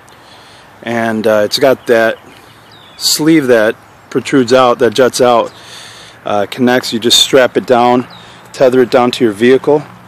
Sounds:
Speech

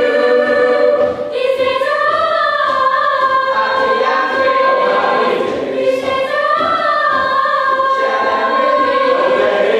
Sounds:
Music, Exciting music

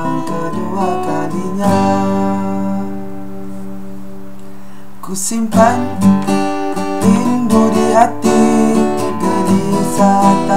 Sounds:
Music, Acoustic guitar, Steel guitar, Country, Strum

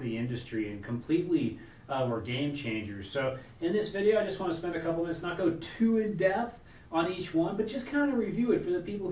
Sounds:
Speech

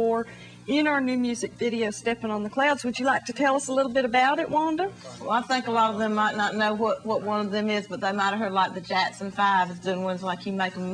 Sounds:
Speech

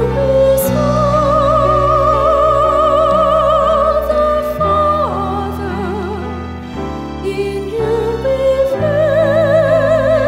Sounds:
Christmas music, Music, Singing, Classical music

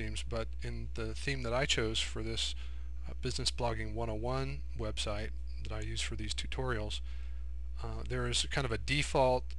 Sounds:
Speech

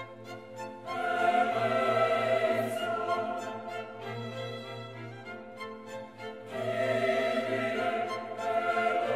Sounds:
Chant

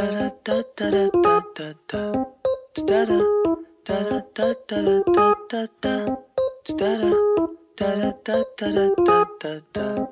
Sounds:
Music

